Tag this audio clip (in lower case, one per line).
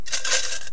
rattle